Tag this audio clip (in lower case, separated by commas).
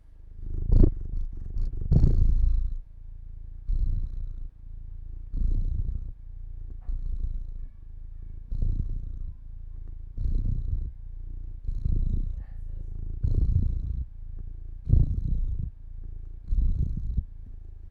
purr, animal, cat, pets